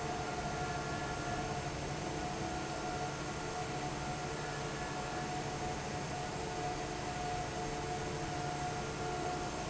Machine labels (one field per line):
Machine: fan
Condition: normal